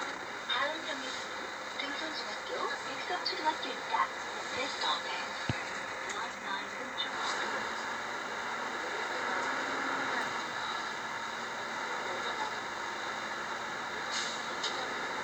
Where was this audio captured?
on a bus